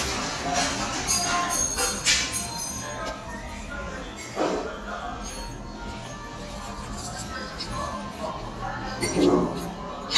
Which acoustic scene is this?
restaurant